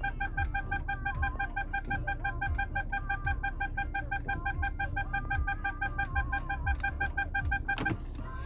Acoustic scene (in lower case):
car